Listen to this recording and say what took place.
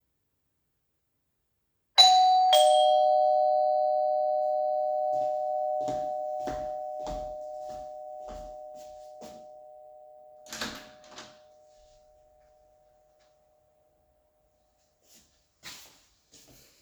Someone rang the doorbell, I went to the door and opened it